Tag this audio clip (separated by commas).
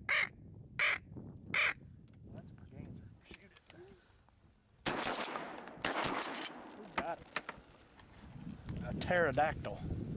Speech, Bird